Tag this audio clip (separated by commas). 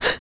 Breathing, Gasp, Respiratory sounds